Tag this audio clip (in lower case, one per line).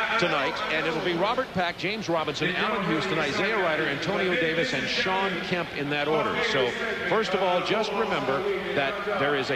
speech